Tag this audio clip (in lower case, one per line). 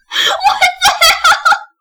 laughter
human voice